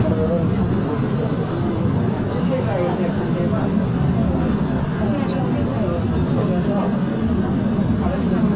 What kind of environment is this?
subway train